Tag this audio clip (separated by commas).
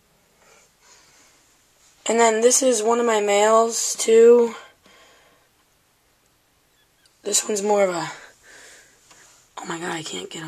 Speech